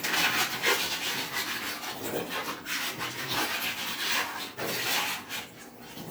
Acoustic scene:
kitchen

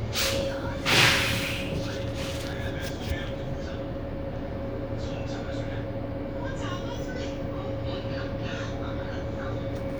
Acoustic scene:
bus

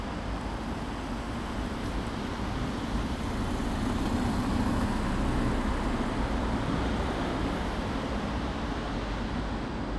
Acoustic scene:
residential area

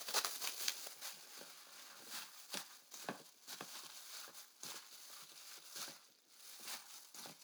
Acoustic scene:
kitchen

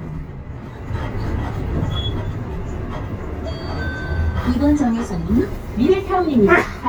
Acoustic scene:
bus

